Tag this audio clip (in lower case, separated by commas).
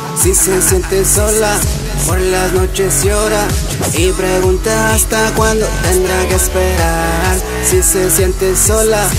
music, electronic music